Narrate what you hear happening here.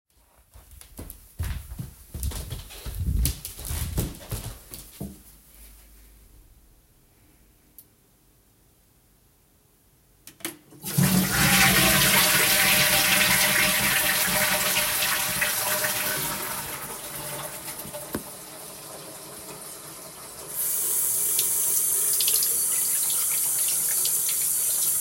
I jogged to the bathroom, spent a moment in silence, then flushed. I washed my hands afterwards.